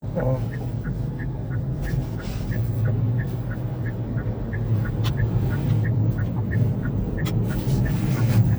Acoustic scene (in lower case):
car